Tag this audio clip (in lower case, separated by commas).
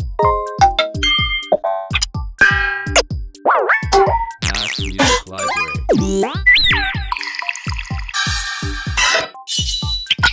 music